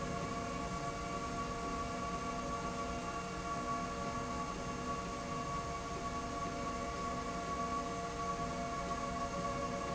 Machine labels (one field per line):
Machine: slide rail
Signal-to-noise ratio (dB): -6 dB